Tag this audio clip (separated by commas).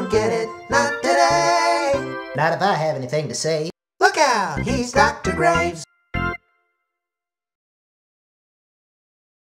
Speech, Music